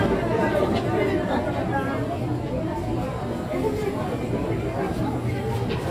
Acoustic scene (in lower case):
crowded indoor space